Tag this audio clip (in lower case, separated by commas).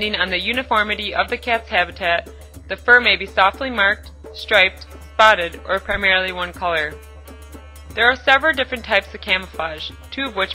speech, music